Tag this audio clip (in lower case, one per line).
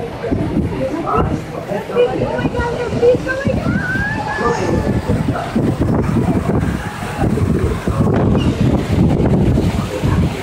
bird
speech